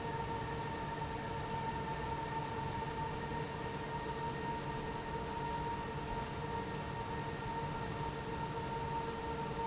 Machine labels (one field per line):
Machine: fan